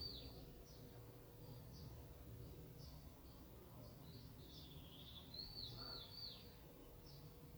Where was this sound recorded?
in a park